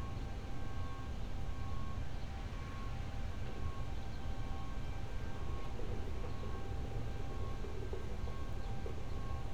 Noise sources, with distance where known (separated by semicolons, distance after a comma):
background noise